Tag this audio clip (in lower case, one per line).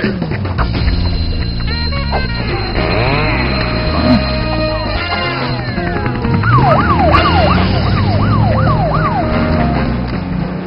music